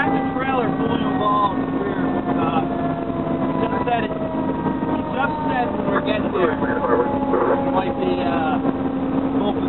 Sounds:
Vehicle, Emergency vehicle, Speech

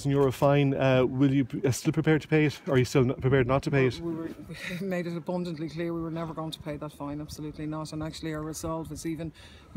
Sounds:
Speech

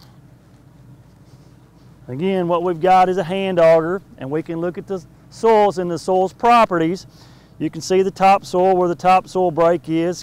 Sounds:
Speech

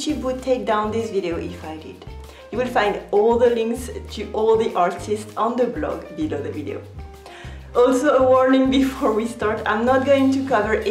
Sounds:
Speech, Music

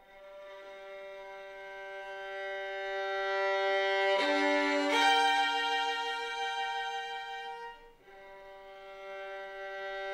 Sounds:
fiddle, Musical instrument, Music

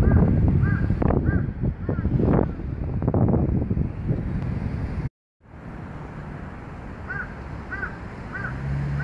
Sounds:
crow cawing

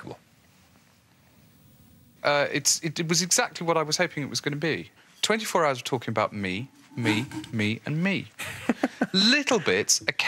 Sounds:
Speech

